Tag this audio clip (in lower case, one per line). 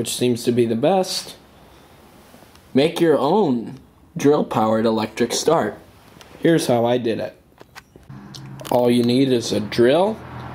speech